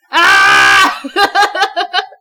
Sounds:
laughter, human voice

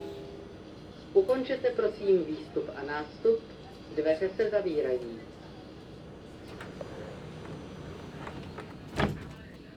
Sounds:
rail transport, vehicle, metro

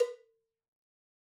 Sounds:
bell, cowbell

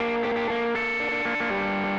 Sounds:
musical instrument, plucked string instrument, guitar, music

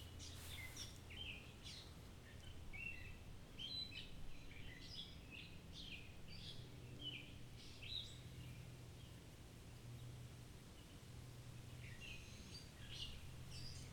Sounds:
bird, wild animals, bird song, animal, chirp

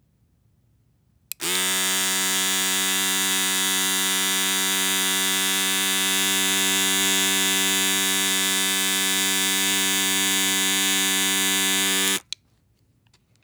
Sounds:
domestic sounds

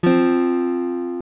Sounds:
music, guitar, musical instrument, acoustic guitar, strum, plucked string instrument

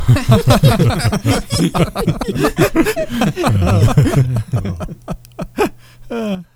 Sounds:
human voice, laughter

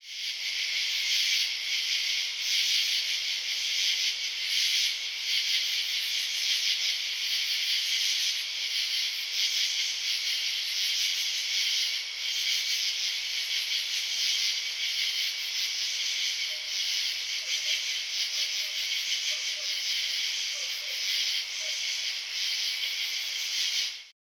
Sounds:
animal, wild animals, insect

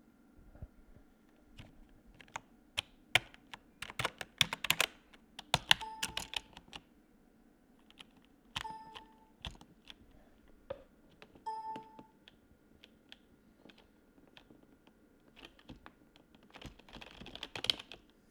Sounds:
computer keyboard, typing, home sounds

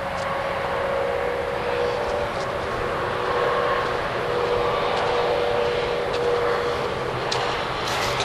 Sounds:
motor vehicle (road), traffic noise, vehicle

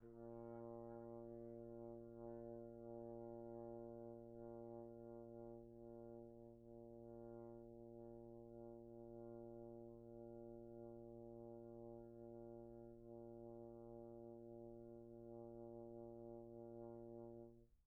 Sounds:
music, musical instrument, brass instrument

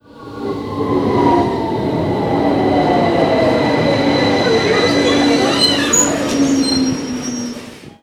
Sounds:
underground, rail transport, vehicle

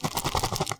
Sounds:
rattle

